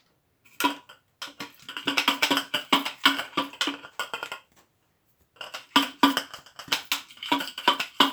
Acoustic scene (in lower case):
kitchen